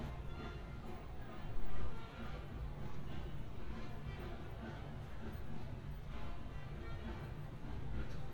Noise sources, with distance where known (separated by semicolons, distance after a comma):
car horn, near; music from a fixed source, far